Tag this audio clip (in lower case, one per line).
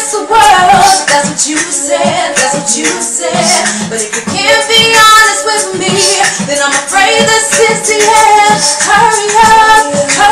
music